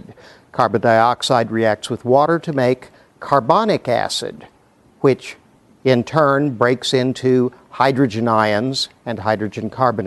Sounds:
speech

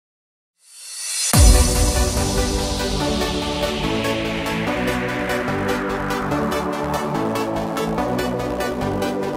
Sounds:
techno

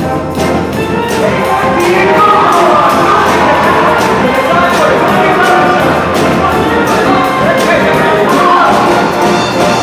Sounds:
music
speech

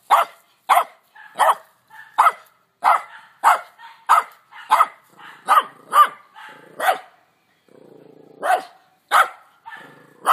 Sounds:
dog barking

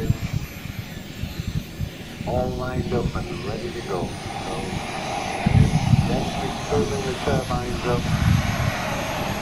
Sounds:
speech

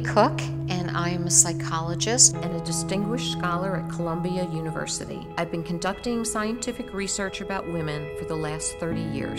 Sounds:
speech
music

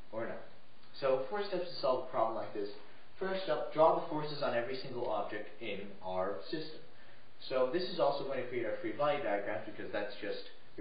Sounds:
speech

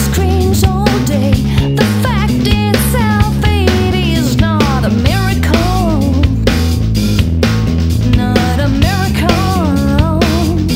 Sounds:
music
funk

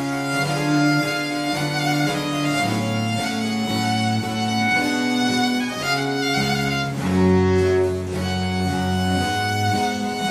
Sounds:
fiddle
violin
music

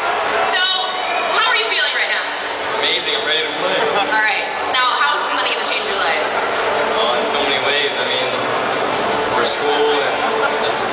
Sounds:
people booing

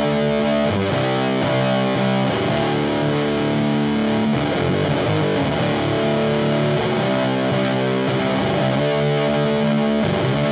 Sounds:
music

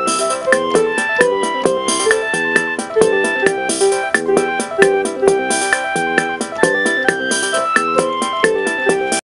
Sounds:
music

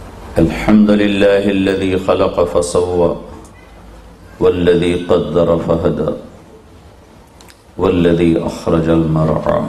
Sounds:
speech
monologue
man speaking

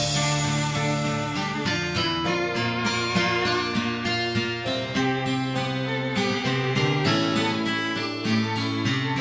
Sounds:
music

